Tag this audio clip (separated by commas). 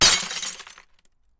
Glass, Crushing, Shatter